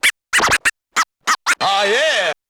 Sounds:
music, musical instrument, scratching (performance technique)

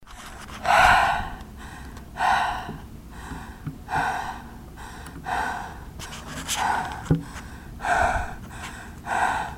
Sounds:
breathing, respiratory sounds

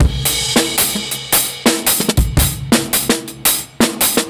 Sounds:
drum, musical instrument, drum kit, music, percussion

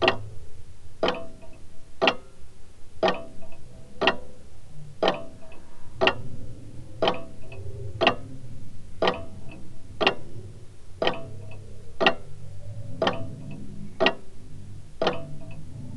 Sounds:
tick-tock, mechanisms, clock

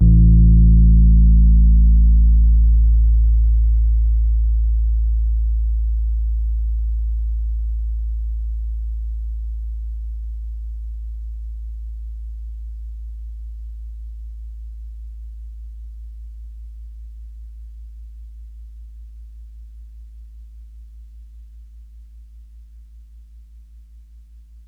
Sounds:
musical instrument, music, keyboard (musical), piano

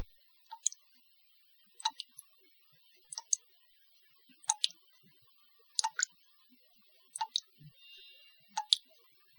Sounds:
liquid, water, drip

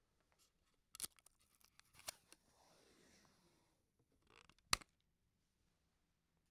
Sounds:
domestic sounds, duct tape

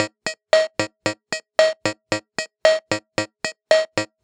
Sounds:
keyboard (musical), music, musical instrument

